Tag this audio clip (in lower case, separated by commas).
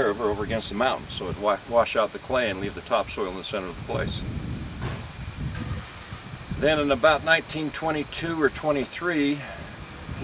speech